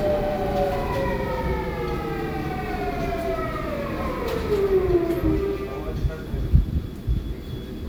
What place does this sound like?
subway train